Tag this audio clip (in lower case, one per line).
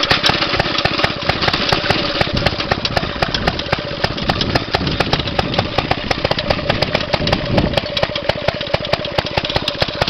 outside, rural or natural
engine